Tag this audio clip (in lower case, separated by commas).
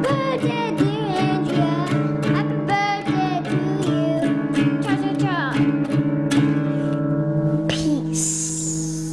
singing, speech, kid speaking, music